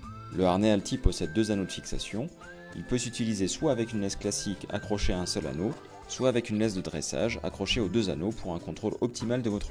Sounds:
music, speech

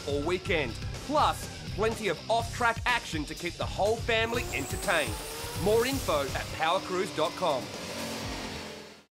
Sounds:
music, speech

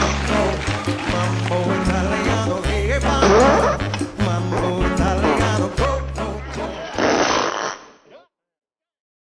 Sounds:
music

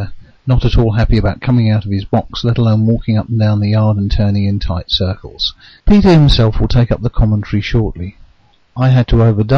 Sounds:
speech

